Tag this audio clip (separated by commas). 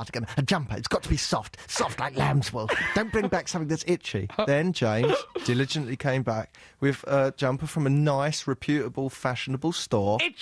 Speech